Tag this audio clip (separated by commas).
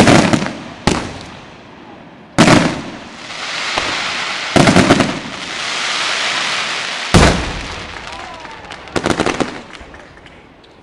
Firecracker, Fireworks, fireworks banging